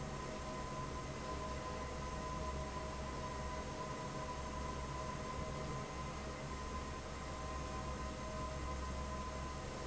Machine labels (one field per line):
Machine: fan